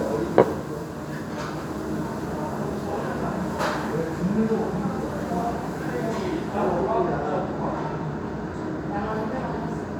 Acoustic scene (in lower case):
restaurant